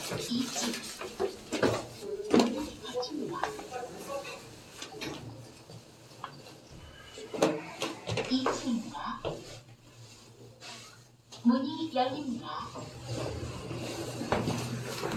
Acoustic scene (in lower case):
elevator